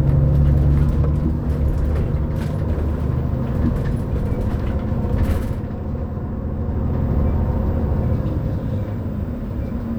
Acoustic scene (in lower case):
bus